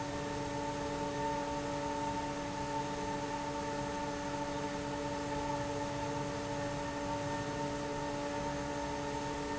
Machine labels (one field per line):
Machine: fan